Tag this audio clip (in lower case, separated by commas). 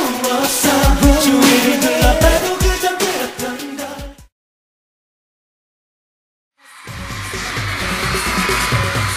singing, pop music, music, pop